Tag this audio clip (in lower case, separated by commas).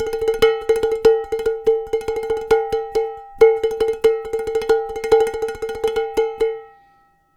domestic sounds, dishes, pots and pans